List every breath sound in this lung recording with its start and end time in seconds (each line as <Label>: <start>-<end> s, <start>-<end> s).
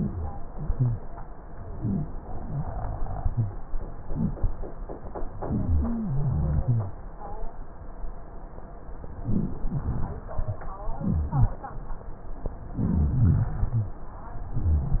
Rhonchi: 0.68-1.00 s, 1.75-2.06 s, 2.33-2.65 s, 3.26-3.58 s, 5.75-6.95 s, 11.04-11.56 s, 12.73-13.23 s, 13.26-13.98 s, 14.57-15.00 s